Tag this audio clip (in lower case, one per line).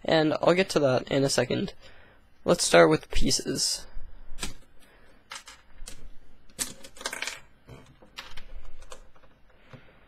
speech